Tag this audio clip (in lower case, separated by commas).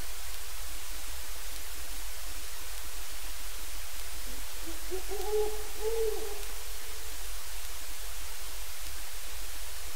owl, bird, animal